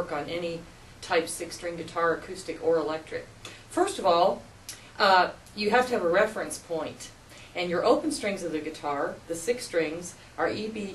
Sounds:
Speech

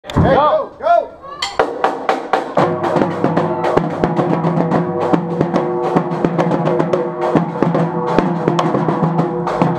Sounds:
Drum, Speech, Musical instrument, Drum kit, Snare drum, Music, inside a large room or hall

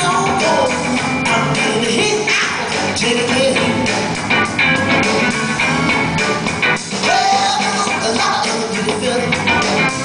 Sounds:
Blues, Music

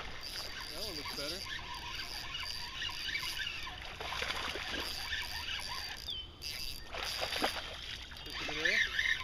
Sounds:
Speech

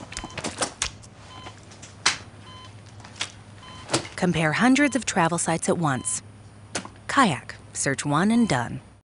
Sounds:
Speech

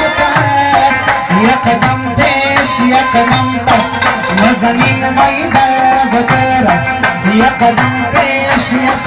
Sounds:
Music

